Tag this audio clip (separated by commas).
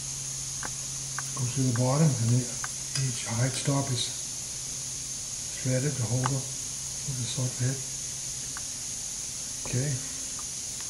Speech